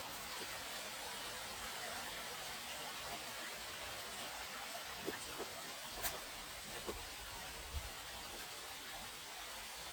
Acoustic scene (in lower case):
park